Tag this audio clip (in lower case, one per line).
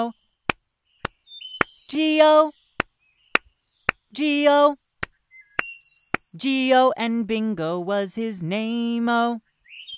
speech
kid speaking